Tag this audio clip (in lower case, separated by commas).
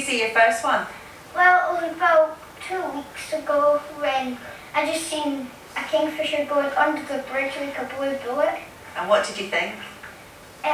speech, outside, rural or natural